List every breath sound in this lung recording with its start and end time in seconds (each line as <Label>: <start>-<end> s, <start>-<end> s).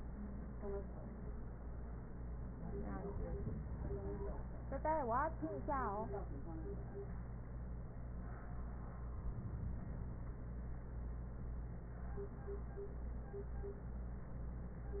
Inhalation: 9.10-10.60 s